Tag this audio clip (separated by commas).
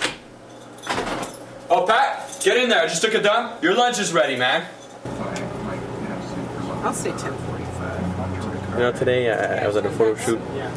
man speaking, Speech